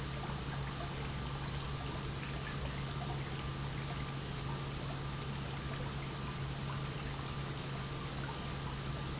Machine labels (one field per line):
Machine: pump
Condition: normal